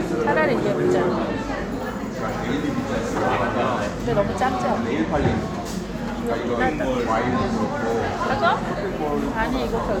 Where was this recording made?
in a crowded indoor space